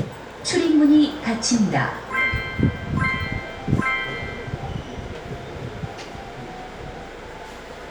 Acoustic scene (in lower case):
subway train